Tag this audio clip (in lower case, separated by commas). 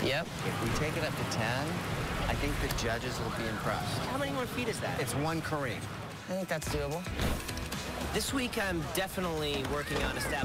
speech, music, water